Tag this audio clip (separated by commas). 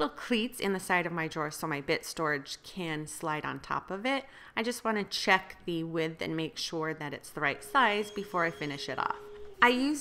Speech